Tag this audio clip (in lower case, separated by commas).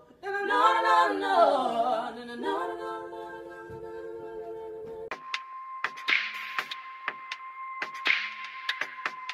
a capella